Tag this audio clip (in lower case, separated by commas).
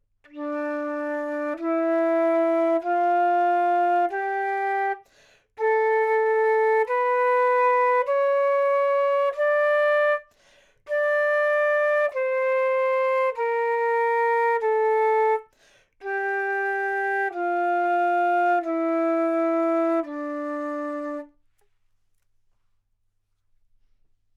woodwind instrument, music, musical instrument